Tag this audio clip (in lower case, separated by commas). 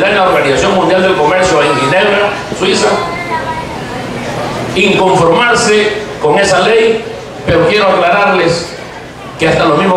male speech, speech